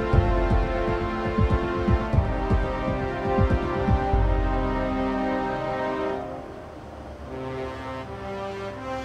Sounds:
music

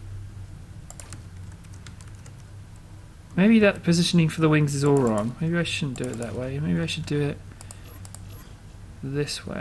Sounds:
speech

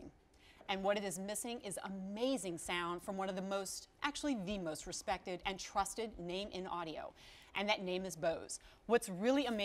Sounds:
speech

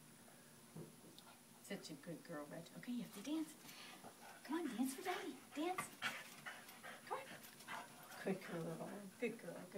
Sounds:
speech

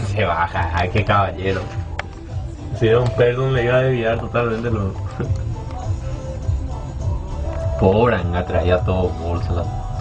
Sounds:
music, speech

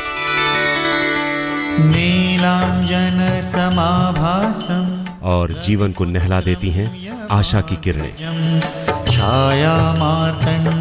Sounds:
sitar

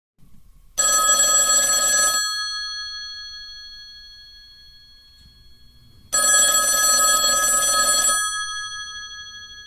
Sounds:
telephone, telephone bell ringing

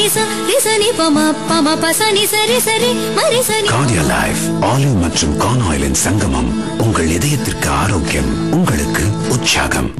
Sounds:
speech, soundtrack music, traditional music, music

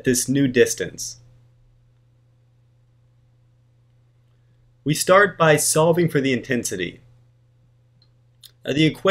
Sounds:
speech

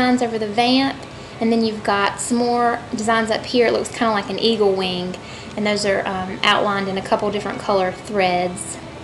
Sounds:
speech

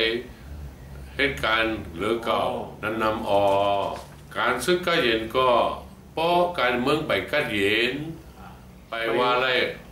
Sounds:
male speech, speech, monologue

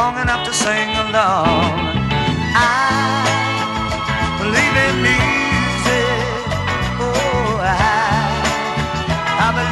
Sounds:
music

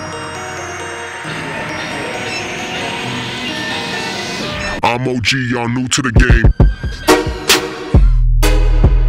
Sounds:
speech, music

